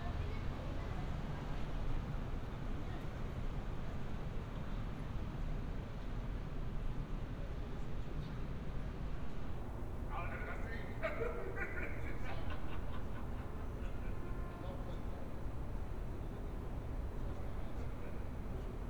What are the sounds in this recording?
person or small group talking